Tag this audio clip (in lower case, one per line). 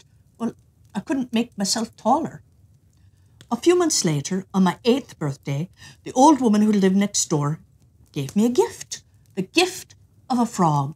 speech